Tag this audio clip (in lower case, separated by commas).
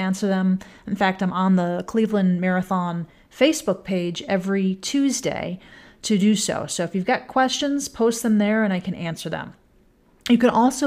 speech